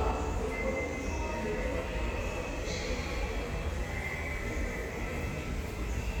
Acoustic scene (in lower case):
subway station